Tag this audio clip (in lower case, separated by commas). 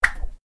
whoosh